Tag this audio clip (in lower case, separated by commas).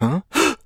breathing, respiratory sounds